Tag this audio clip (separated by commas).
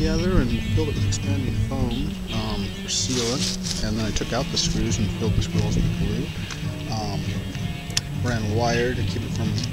Speech, Music